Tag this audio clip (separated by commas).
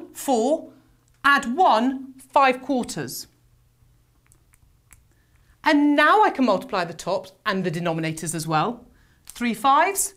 Speech